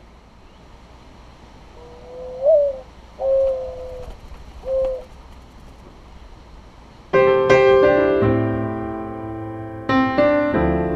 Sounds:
Music, Pigeon, Bird

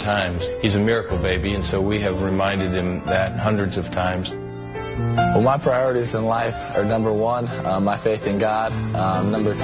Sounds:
man speaking, Music, Speech

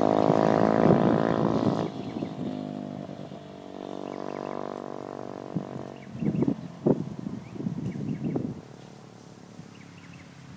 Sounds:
vroom, Vehicle

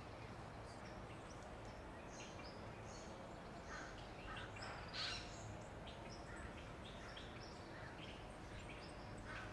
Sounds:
Bird vocalization, Animal

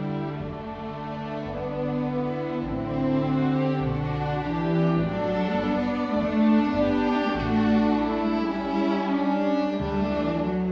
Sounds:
Violin, Orchestra, Music, Musical instrument

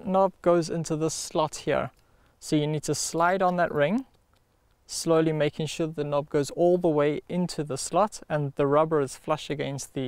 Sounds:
Speech

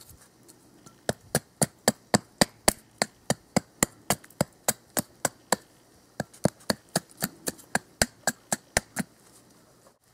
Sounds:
outside, rural or natural

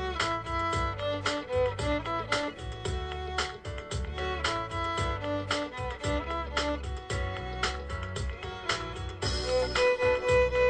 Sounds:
Music, fiddle, Musical instrument

